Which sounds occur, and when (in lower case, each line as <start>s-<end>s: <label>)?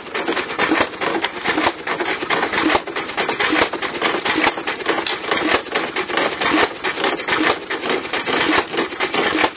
0.0s-9.5s: splinter